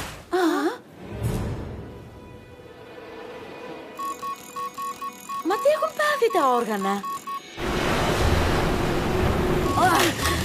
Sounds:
speech, music

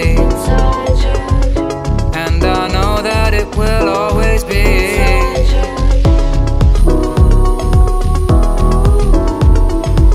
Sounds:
music

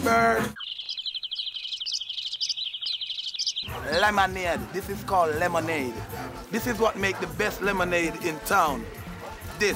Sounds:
bird vocalization, bird, tweet

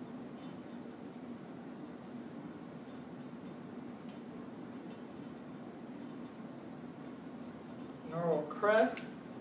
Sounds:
speech, inside a large room or hall

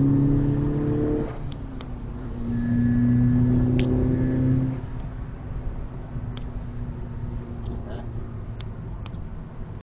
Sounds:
speech

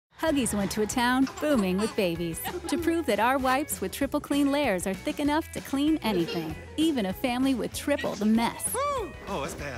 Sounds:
child speech, music, speech

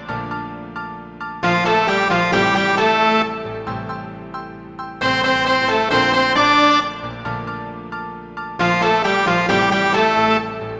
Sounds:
musical instrument, music

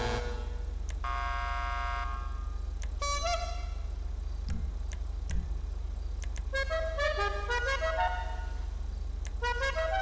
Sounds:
car horn

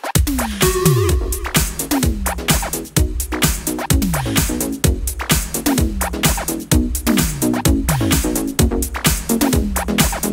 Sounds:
music, electronic music, disco

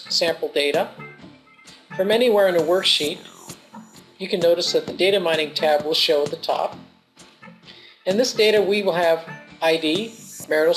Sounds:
music, speech

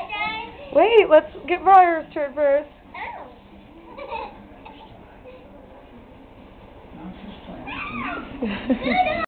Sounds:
speech

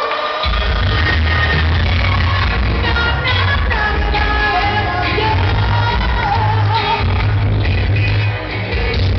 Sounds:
music

